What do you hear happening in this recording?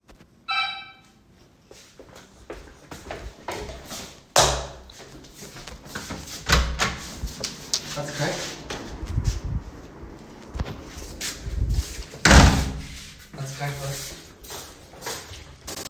My brother rang the door and I opened it for him